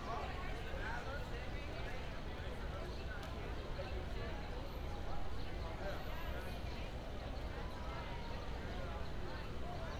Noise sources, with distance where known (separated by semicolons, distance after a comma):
person or small group talking, far